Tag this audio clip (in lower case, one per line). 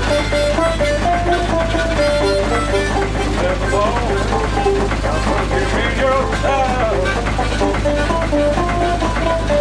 music